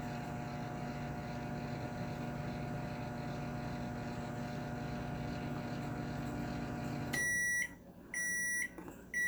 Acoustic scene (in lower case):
kitchen